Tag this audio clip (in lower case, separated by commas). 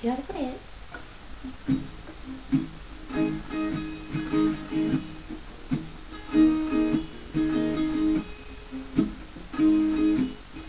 speech, musical instrument, guitar, strum, plucked string instrument, music, acoustic guitar